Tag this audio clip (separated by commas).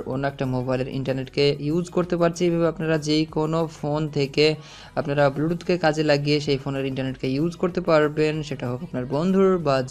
cell phone buzzing